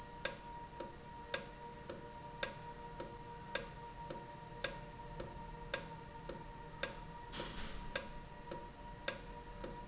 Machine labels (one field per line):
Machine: valve